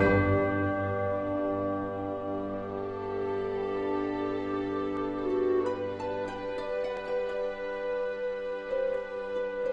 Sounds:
music
glass

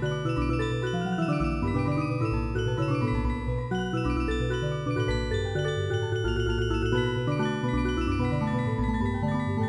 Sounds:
music

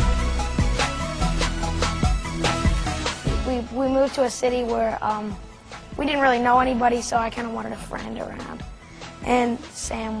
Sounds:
speech
music

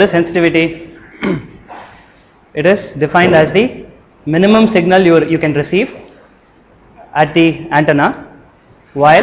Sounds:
speech

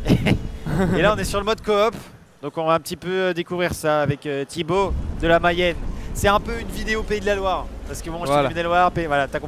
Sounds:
speech

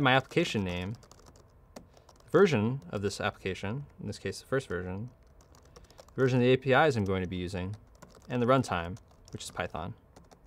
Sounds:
speech

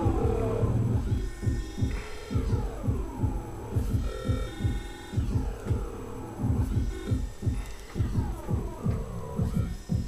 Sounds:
throbbing
hum

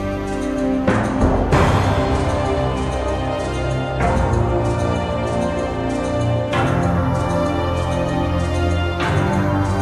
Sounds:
music

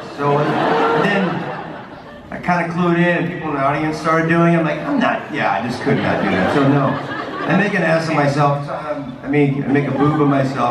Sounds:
speech

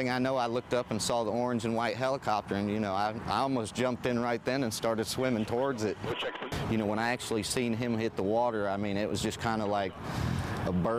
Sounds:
speech

